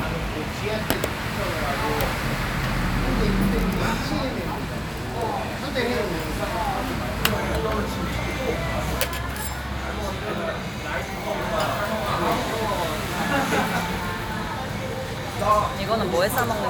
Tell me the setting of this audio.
restaurant